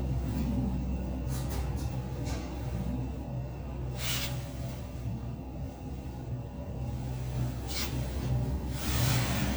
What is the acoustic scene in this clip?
elevator